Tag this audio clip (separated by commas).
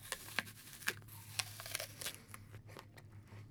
Chewing